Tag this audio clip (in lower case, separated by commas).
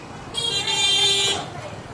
motor vehicle (road), alarm, car, vehicle horn, vehicle, roadway noise